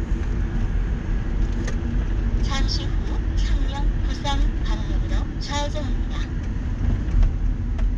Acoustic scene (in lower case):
car